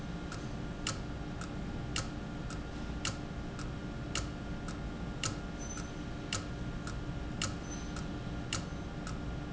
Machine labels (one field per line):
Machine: valve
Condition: abnormal